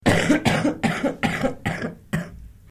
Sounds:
Respiratory sounds, Cough

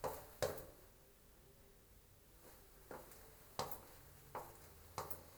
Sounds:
Walk

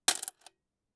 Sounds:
Coin (dropping), Domestic sounds

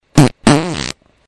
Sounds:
Fart

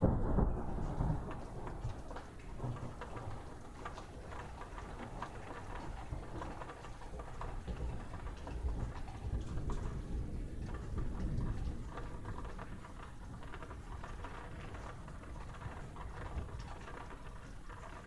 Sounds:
Water, Rain, Thunderstorm

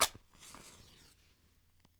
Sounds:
Fire

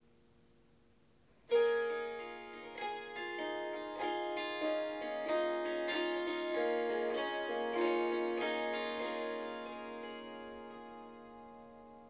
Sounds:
Music, Harp, Musical instrument

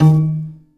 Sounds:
Music, Piano, Musical instrument, Keyboard (musical)

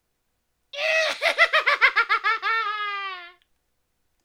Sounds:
Human voice, Laughter

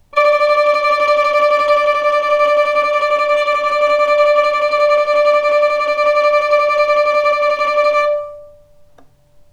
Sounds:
Music, Bowed string instrument, Musical instrument

